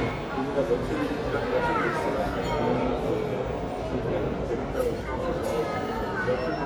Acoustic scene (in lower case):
crowded indoor space